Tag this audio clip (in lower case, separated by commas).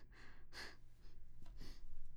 respiratory sounds, breathing